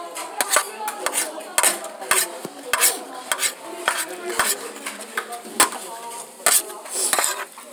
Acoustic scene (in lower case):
kitchen